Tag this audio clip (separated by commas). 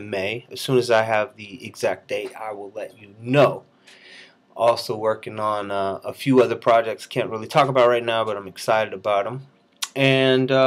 Speech